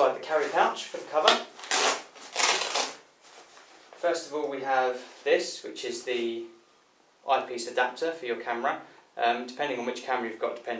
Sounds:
speech

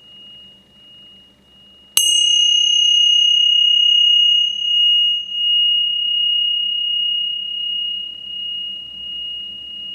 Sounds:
mantra

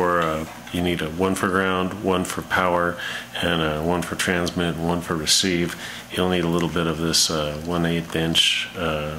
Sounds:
speech

